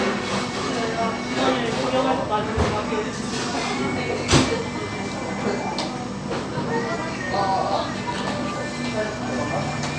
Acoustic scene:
cafe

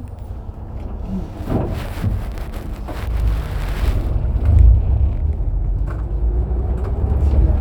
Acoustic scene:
bus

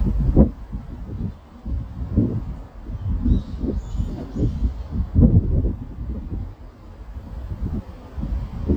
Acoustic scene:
residential area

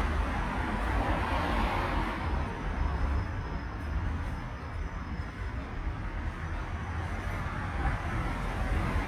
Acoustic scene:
street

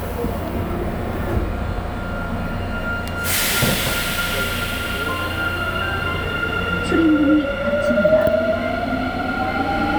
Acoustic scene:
subway train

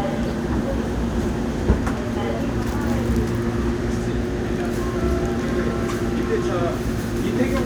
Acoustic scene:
subway train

